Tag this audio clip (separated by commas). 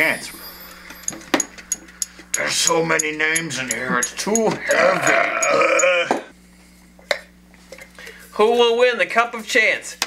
Speech